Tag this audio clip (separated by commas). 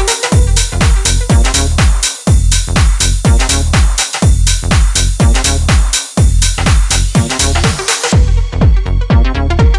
Electronica, Music